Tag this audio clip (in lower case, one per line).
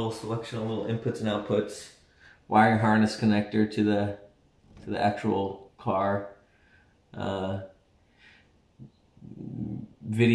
speech